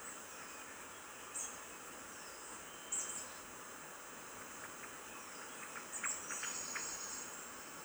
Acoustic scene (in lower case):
park